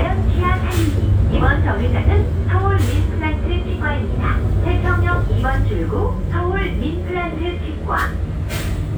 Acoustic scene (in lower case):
bus